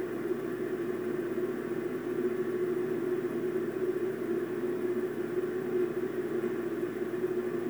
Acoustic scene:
subway train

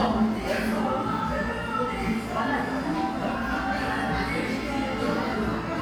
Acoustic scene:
cafe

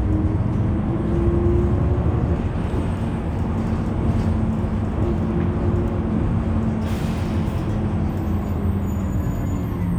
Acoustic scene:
bus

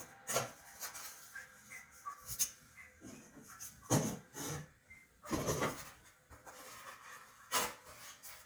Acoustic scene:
restroom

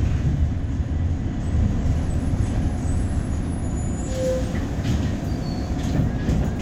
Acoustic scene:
bus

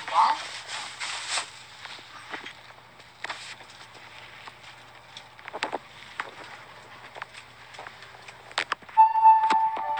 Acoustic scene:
elevator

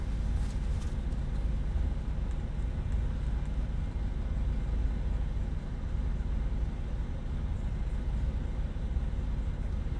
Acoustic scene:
car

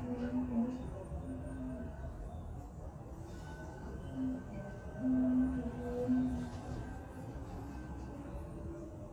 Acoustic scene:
subway train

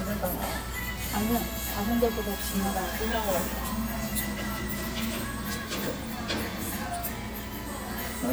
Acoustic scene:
restaurant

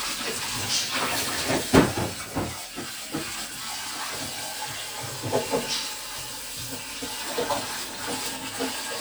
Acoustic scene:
kitchen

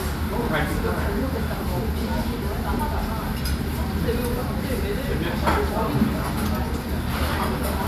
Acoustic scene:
restaurant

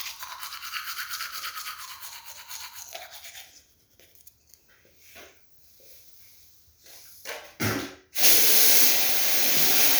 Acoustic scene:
restroom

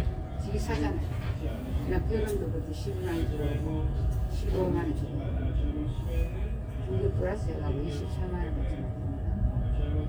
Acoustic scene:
crowded indoor space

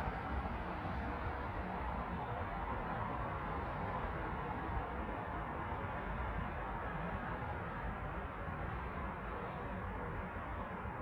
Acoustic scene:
street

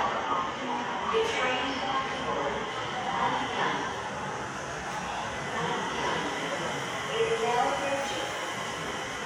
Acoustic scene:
subway station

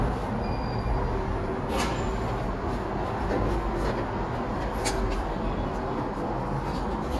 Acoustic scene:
elevator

